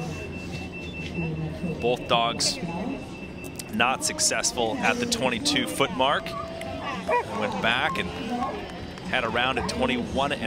Electronic beeping occurs, an adult male speaks, a dog barks, and a crowd of people talk in the background